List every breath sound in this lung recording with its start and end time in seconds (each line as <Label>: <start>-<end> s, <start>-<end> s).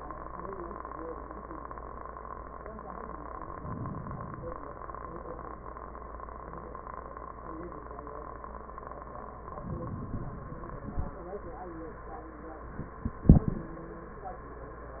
Inhalation: 3.52-4.62 s, 9.45-10.49 s